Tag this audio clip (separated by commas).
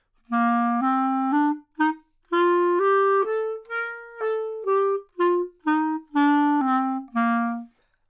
woodwind instrument, Music, Musical instrument